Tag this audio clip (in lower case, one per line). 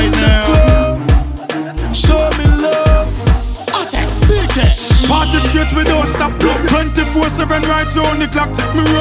music